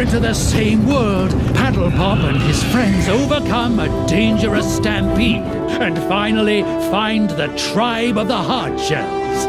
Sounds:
speech
music

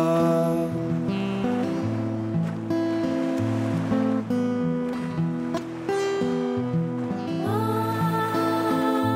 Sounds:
music

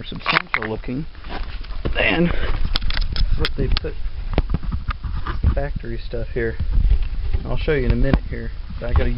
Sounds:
speech
outside, urban or man-made

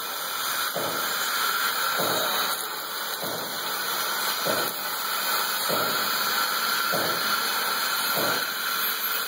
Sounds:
vacuum cleaner

